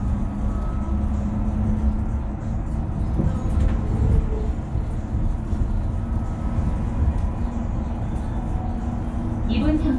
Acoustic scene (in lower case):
bus